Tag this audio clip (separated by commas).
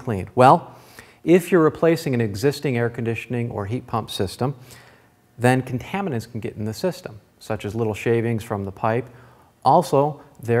Speech